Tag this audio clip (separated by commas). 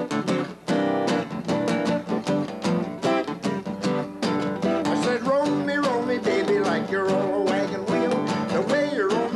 Blues, Music, Plucked string instrument, Musical instrument, Guitar